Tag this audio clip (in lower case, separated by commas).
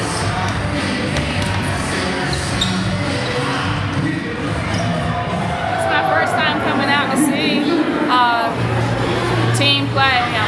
basketball bounce